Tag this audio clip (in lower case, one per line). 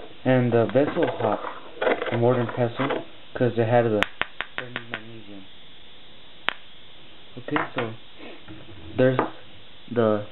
speech